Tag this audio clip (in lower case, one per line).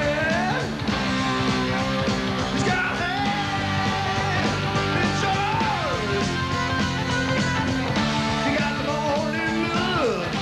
music